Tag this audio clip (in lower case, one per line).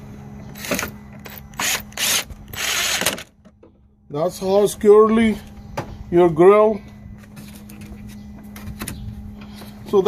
vehicle